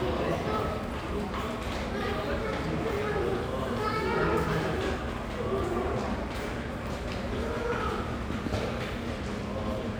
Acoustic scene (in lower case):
subway station